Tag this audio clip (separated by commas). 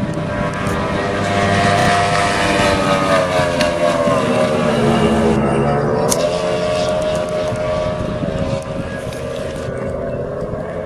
Vehicle, speedboat